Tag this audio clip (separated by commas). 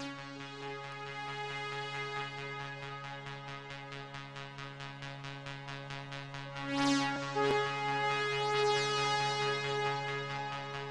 Music